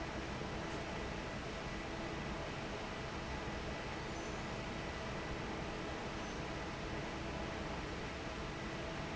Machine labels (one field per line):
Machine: fan